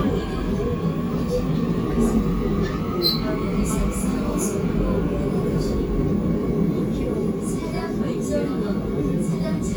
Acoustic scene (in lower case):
subway train